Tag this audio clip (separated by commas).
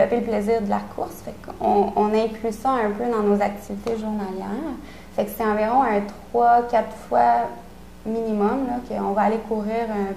Speech